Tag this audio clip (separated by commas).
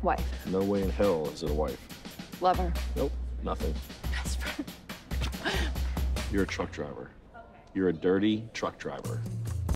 Speech, Music